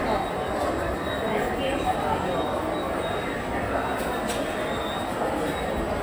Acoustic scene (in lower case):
subway station